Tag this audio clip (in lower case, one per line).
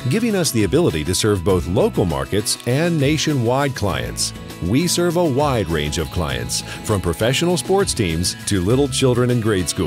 speech
music